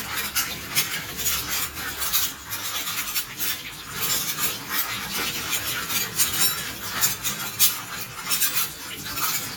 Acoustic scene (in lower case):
kitchen